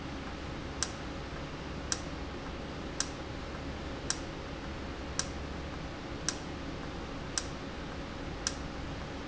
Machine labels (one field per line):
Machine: valve